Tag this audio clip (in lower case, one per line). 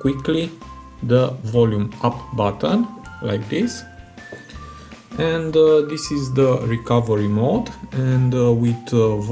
cell phone buzzing